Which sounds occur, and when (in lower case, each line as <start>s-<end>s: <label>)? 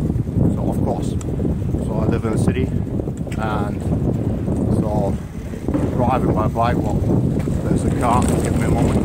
0.0s-9.0s: bicycle
0.0s-9.0s: wind
0.0s-9.0s: wind noise (microphone)
0.5s-1.1s: man speaking
1.1s-1.3s: generic impact sounds
1.8s-2.6s: man speaking
3.1s-3.6s: generic impact sounds
3.3s-3.7s: man speaking
4.7s-4.8s: generic impact sounds
4.8s-5.1s: man speaking
5.9s-6.9s: man speaking
7.3s-7.5s: generic impact sounds
7.6s-8.2s: man speaking
8.2s-8.5s: generic impact sounds
8.5s-9.0s: man speaking